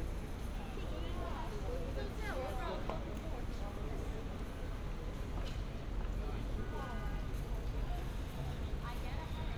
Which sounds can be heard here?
person or small group talking